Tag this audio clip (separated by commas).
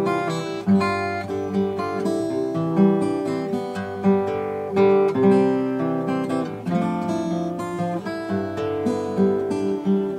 Music, Plucked string instrument, Guitar, Musical instrument